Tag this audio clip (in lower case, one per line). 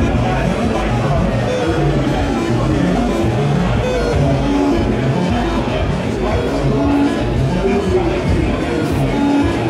music
speech